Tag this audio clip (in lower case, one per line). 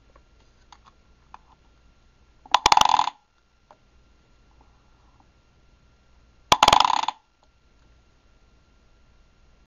rattle